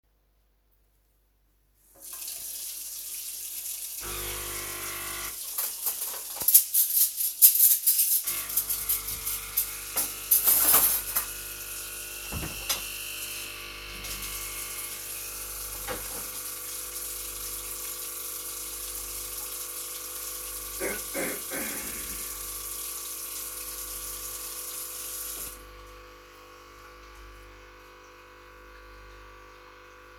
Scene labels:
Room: kitchen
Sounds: running water, coffee machine, cutlery and dishes

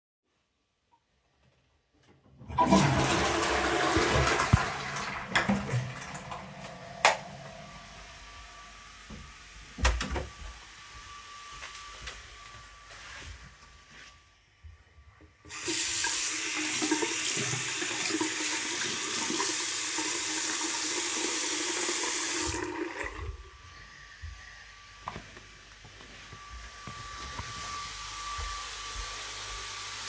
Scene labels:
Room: lavatory, hallway, bathroom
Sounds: toilet flushing, door (more than once), vacuum cleaner, light switch, footsteps, running water

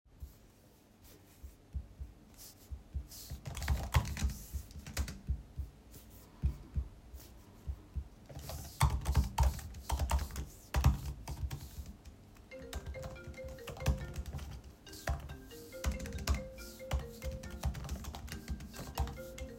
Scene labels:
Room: bedroom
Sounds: keyboard typing, phone ringing

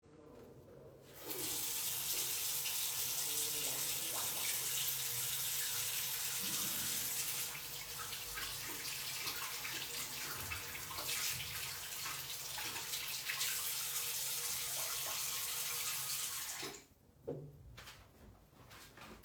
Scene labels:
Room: living room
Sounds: running water, footsteps

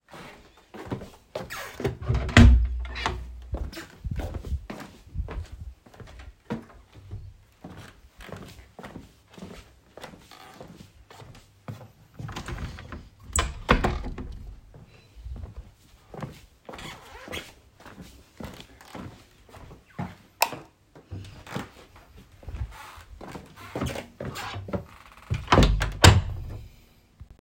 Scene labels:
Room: hallway, living room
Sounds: footsteps, door (more than once), window, light switch

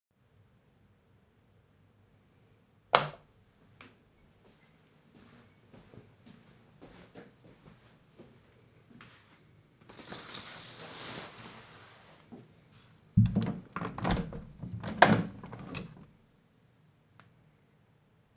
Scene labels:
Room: bedroom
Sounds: light switch, footsteps, window

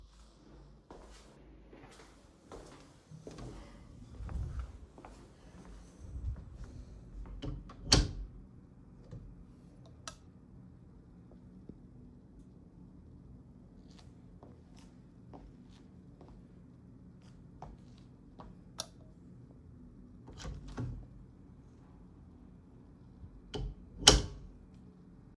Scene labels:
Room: hallway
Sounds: footsteps, door (more than once), light switch

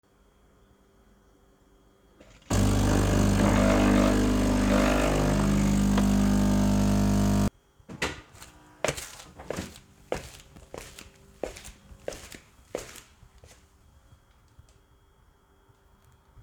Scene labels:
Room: kitchen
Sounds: coffee machine, footsteps

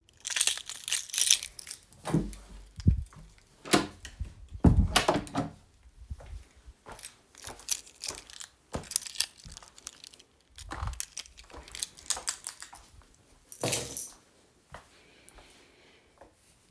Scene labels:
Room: hallway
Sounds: keys, footsteps, door

